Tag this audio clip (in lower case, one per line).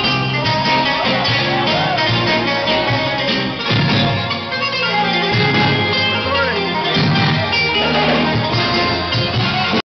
music
speech